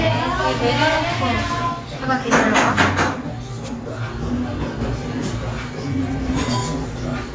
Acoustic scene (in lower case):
cafe